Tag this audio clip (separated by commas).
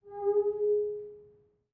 Glass